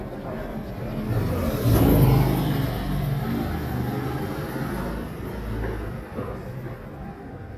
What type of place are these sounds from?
residential area